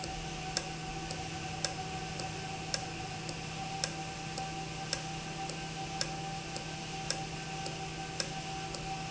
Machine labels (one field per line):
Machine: valve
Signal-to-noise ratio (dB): -6 dB